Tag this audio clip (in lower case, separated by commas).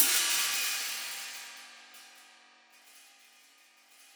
cymbal, musical instrument, hi-hat, music, percussion